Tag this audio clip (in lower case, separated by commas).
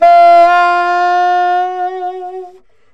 music, woodwind instrument, musical instrument